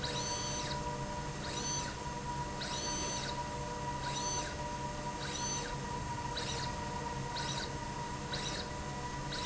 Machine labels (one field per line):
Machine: slide rail